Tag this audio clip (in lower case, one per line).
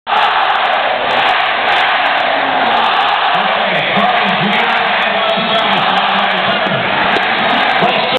speech